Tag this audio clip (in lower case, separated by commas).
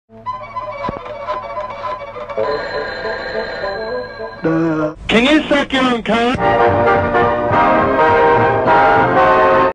speech, music